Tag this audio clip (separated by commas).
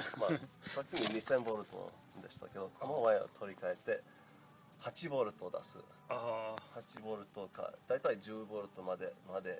Speech